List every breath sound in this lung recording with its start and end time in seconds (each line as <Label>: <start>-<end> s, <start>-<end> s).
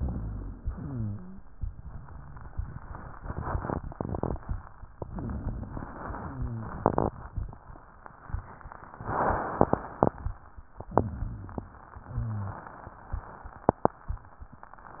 Inhalation: 0.00-0.67 s, 5.03-6.09 s, 10.95-11.77 s
Exhalation: 0.67-1.43 s, 6.17-6.85 s, 11.97-12.66 s
Wheeze: 0.67-1.43 s, 6.17-6.85 s, 11.97-12.66 s
Rhonchi: 0.00-0.67 s, 5.03-6.09 s, 10.95-11.77 s